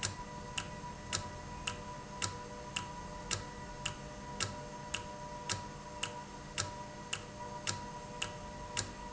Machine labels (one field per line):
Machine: valve